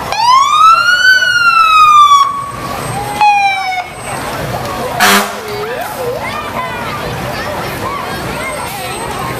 A siren quickly sounds and stops followed by a horn with crowds of people speaking